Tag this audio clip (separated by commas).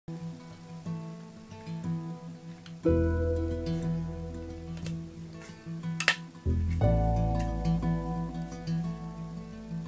Music